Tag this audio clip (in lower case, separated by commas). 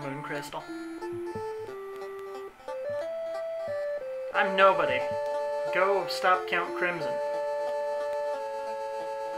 speech, music